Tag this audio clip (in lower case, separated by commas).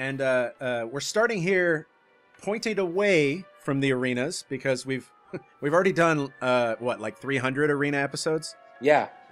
speech, music